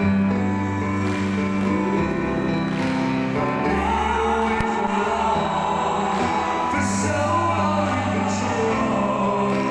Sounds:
Music

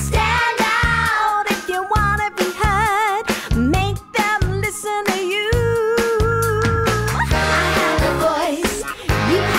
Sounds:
Dance music, Music

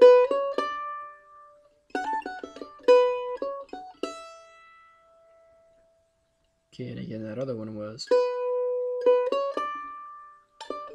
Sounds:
playing mandolin

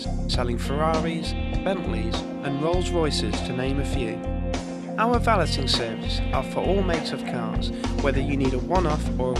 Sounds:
Music, Speech

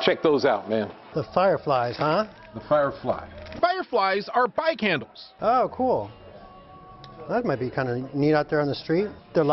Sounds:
Speech

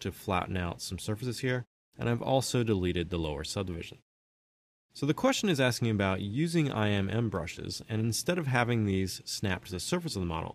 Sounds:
Speech

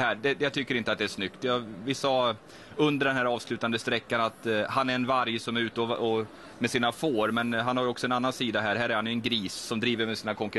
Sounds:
Speech

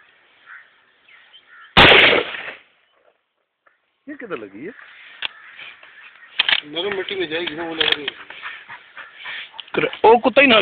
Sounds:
Speech, Animal

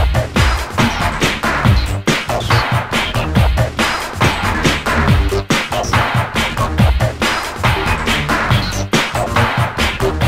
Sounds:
Music

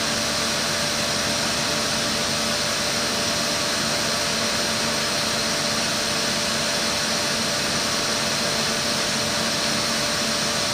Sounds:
Tools

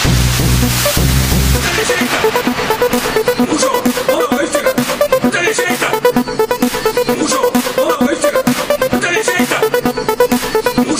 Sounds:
Music, Electronic music, Techno

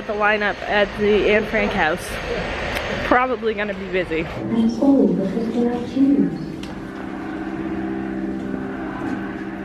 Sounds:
Speech

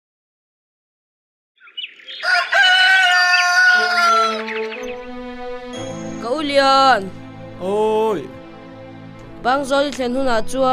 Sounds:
outside, rural or natural, Speech, Music

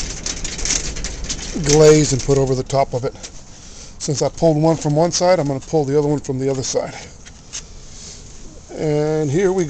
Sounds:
Speech

